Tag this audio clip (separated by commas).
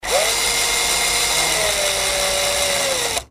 Drill, Tools, Power tool